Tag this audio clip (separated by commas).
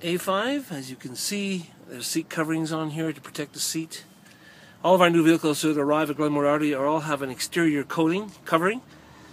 Speech